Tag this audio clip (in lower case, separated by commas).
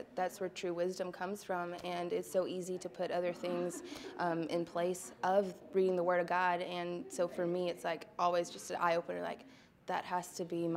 speech, inside a small room